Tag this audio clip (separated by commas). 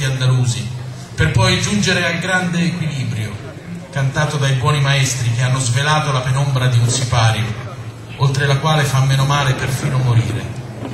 Speech